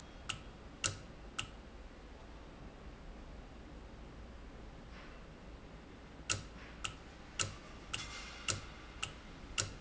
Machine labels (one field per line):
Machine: valve